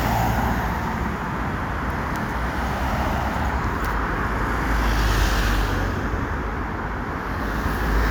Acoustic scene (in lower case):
street